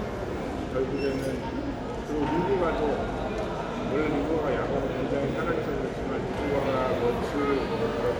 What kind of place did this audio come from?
crowded indoor space